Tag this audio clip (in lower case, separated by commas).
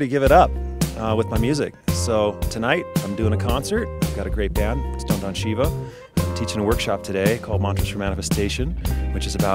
music, speech